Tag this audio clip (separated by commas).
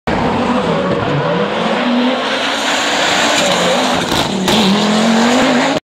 Vehicle, Race car